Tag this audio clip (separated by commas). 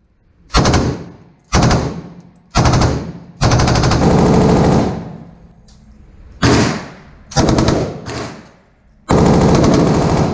machine gun shooting